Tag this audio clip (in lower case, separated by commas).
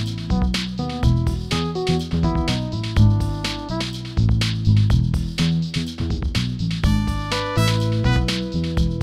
music